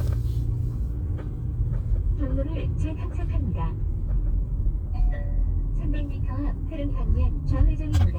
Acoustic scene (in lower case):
car